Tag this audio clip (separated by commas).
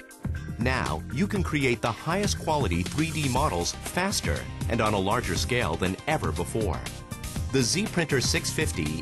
Speech, Music